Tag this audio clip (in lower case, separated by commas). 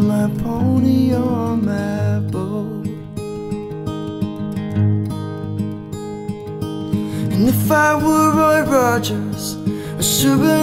music